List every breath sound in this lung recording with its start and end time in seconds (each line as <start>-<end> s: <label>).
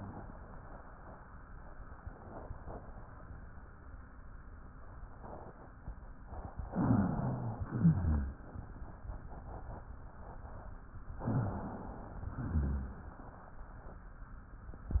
6.72-7.69 s: inhalation
6.72-7.69 s: rhonchi
7.74-8.48 s: exhalation
7.74-8.48 s: rhonchi
11.23-12.22 s: inhalation
11.23-12.22 s: rhonchi
12.39-13.13 s: exhalation
12.39-13.13 s: rhonchi